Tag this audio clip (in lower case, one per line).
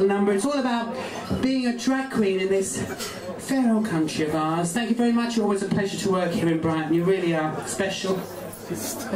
speech